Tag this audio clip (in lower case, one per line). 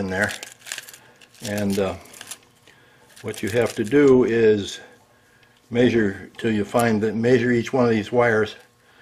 speech